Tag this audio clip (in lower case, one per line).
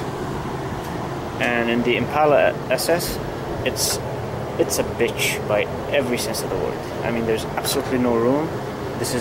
speech